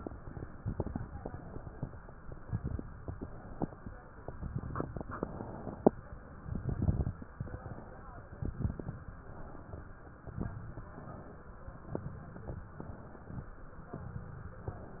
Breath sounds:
1.01-1.84 s: inhalation
2.94-3.77 s: inhalation
4.17-5.01 s: exhalation
4.17-5.01 s: crackles
5.08-5.91 s: inhalation
6.37-7.20 s: exhalation
6.37-7.20 s: crackles
7.33-8.17 s: inhalation
8.32-9.15 s: exhalation
8.32-9.15 s: crackles
9.20-10.04 s: inhalation
10.03-10.81 s: exhalation
10.03-10.81 s: crackles
10.84-11.68 s: inhalation
11.79-12.68 s: exhalation
11.79-12.68 s: crackles
12.73-13.57 s: inhalation
13.83-14.72 s: exhalation
13.83-14.72 s: crackles

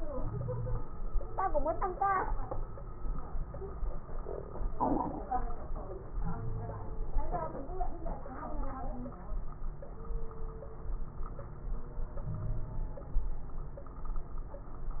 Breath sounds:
0.15-0.84 s: wheeze
6.19-6.94 s: wheeze
12.24-12.91 s: wheeze

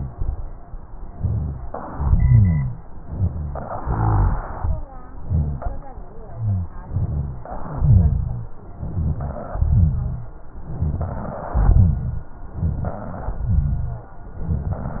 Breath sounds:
1.08-1.67 s: inhalation
1.08-1.67 s: rhonchi
1.71-2.81 s: exhalation
1.71-2.81 s: rhonchi
3.00-3.80 s: rhonchi
3.00-3.81 s: inhalation
3.81-4.88 s: exhalation
3.81-4.88 s: rhonchi
5.22-5.88 s: inhalation
5.22-5.88 s: rhonchi
6.34-6.74 s: rhonchi
6.89-7.48 s: exhalation
6.89-7.48 s: rhonchi
7.53-8.54 s: rhonchi
8.71-9.49 s: inhalation
8.71-9.49 s: rhonchi
9.54-10.32 s: exhalation
9.54-10.32 s: rhonchi
10.68-11.54 s: inhalation
10.68-11.54 s: rhonchi
11.57-12.33 s: exhalation
11.57-12.33 s: rhonchi
12.54-13.30 s: inhalation
12.54-13.30 s: rhonchi
13.38-14.14 s: exhalation
13.38-14.14 s: rhonchi
14.36-15.00 s: inhalation
14.36-15.00 s: rhonchi

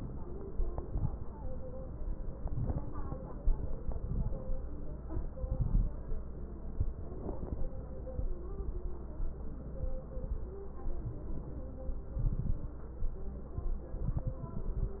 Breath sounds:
0.45-1.33 s: inhalation
0.45-1.33 s: crackles
2.30-3.17 s: inhalation
2.30-3.17 s: crackles
3.65-4.52 s: inhalation
3.65-4.52 s: crackles
5.03-5.91 s: inhalation
5.03-5.91 s: crackles
12.18-12.79 s: inhalation
12.18-12.79 s: crackles
14.08-15.00 s: inhalation
14.08-15.00 s: crackles

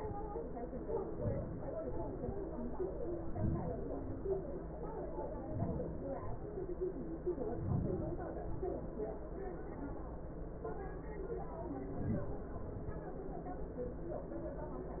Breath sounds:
0.80-1.60 s: inhalation
1.63-2.30 s: exhalation
3.13-3.89 s: inhalation
3.91-4.44 s: exhalation
5.16-5.90 s: inhalation
5.94-6.47 s: exhalation
7.25-8.27 s: inhalation
8.25-8.96 s: exhalation
11.74-12.20 s: inhalation
12.24-12.60 s: exhalation

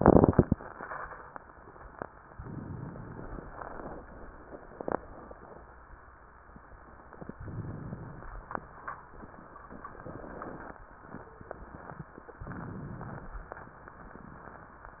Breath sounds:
2.36-3.46 s: inhalation
3.48-4.43 s: exhalation
7.41-8.36 s: inhalation
12.41-13.42 s: inhalation
12.41-13.42 s: crackles

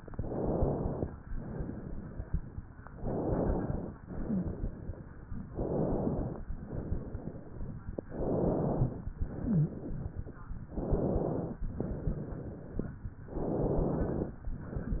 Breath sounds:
0.06-1.12 s: inhalation
1.23-2.58 s: exhalation
2.92-3.99 s: inhalation
4.08-5.43 s: exhalation
4.21-4.52 s: wheeze
5.50-6.45 s: inhalation
6.58-7.93 s: exhalation
8.04-8.99 s: inhalation
9.16-10.51 s: exhalation
9.39-9.83 s: wheeze
10.72-11.67 s: inhalation
11.80-13.04 s: exhalation
13.30-14.50 s: inhalation

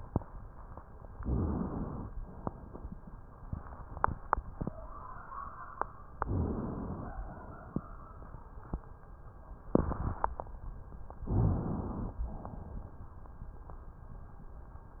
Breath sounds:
1.12-2.11 s: inhalation
6.19-7.17 s: inhalation
11.29-12.28 s: inhalation

